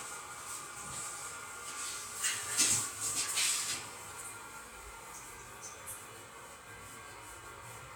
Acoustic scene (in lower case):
restroom